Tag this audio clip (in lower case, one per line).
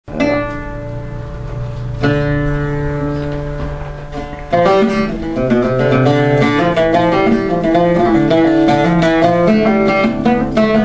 musical instrument
music
bowed string instrument
plucked string instrument